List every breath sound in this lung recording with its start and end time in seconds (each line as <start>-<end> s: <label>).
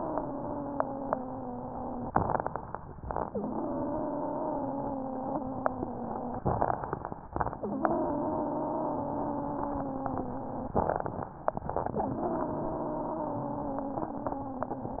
0.00-2.07 s: exhalation
0.00-2.07 s: wheeze
2.14-2.90 s: inhalation
2.14-2.90 s: crackles
3.24-6.40 s: exhalation
3.24-6.40 s: wheeze
6.49-7.25 s: inhalation
6.49-7.25 s: crackles
7.57-10.72 s: exhalation
7.57-10.72 s: wheeze
10.81-11.57 s: inhalation
10.81-11.57 s: crackles
11.97-15.00 s: exhalation
11.97-15.00 s: wheeze